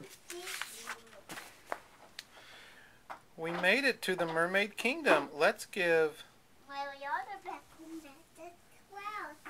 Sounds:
inside a small room, speech

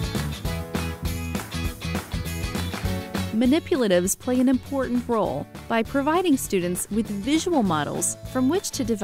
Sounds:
speech, music

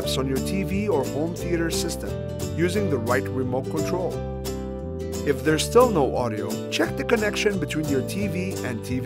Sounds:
music, speech

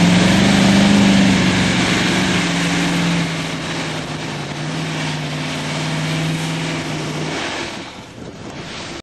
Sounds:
vehicle

